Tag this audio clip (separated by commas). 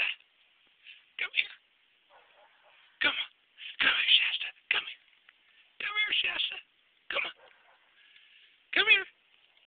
Speech